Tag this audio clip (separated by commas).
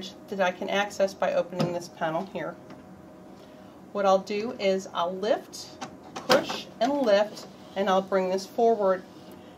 Speech